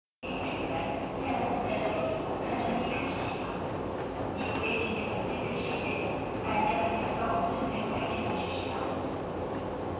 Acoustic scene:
subway station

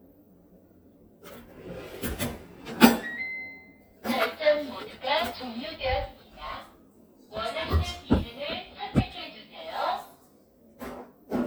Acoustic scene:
kitchen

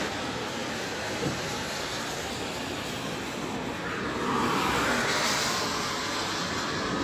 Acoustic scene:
street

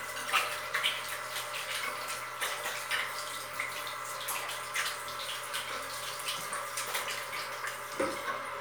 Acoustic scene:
restroom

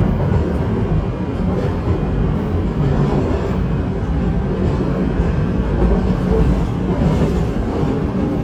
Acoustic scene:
subway train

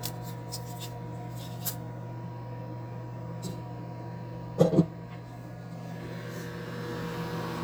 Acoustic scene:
kitchen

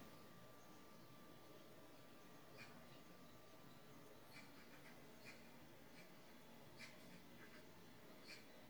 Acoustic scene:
park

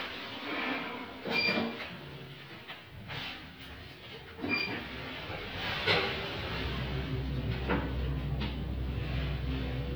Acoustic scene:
elevator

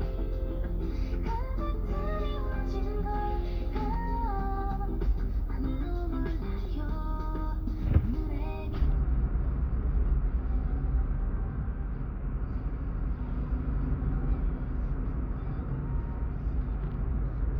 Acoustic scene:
car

